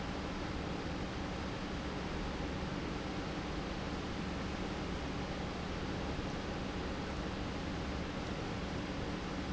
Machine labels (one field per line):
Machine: pump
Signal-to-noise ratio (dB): -6 dB